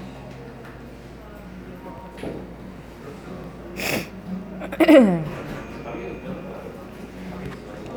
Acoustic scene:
cafe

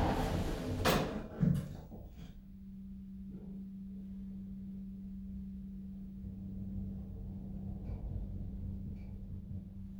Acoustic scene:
elevator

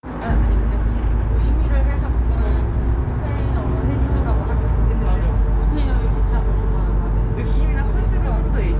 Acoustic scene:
bus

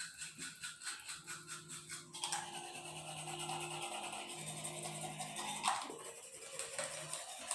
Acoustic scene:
restroom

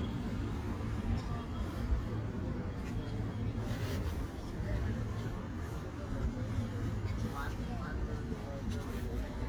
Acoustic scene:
park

